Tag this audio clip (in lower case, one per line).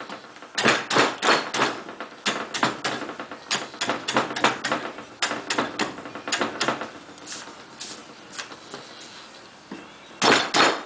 wood